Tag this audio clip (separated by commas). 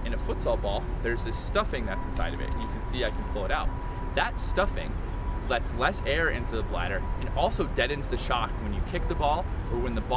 Speech